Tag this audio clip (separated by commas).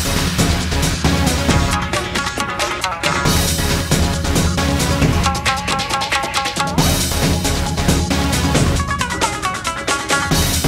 Soundtrack music, Video game music, Music